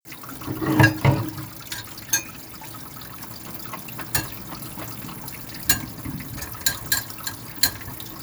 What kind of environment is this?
kitchen